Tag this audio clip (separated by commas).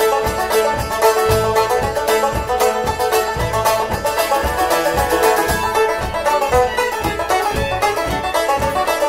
Musical instrument, fiddle, Music